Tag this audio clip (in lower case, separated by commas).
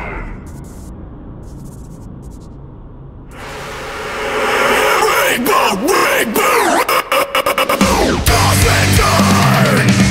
exciting music, music